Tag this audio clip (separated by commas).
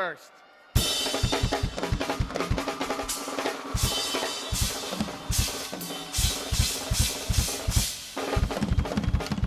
Drum kit, Music, Musical instrument, Drum, Speech